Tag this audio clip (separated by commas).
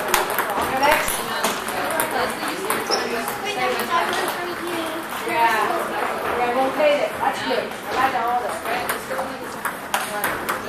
Speech